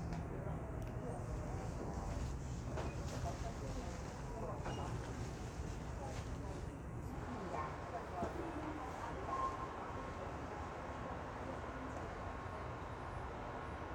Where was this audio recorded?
on a subway train